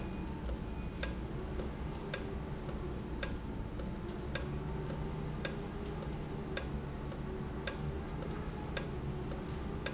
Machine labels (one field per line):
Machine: valve